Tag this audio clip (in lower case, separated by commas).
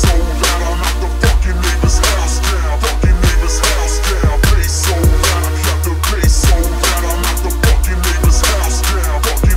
hip hop music, music